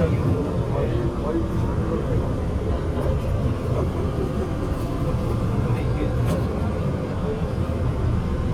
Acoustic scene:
subway train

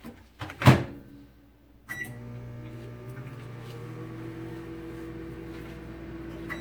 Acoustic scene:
kitchen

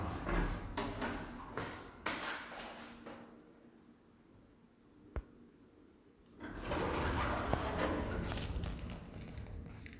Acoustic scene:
elevator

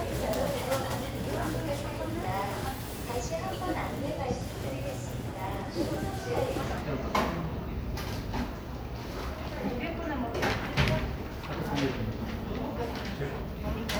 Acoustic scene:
crowded indoor space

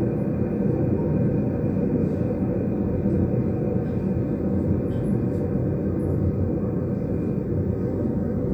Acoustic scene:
subway train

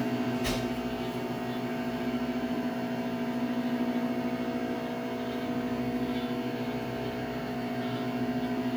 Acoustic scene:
kitchen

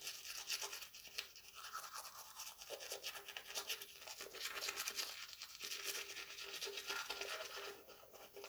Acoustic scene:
restroom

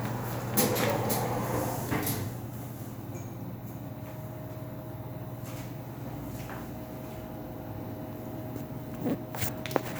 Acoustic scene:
elevator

